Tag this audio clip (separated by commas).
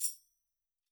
Tambourine, Music, Percussion, Musical instrument